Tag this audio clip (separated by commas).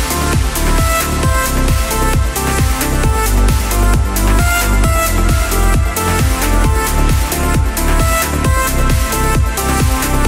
Sampler, Music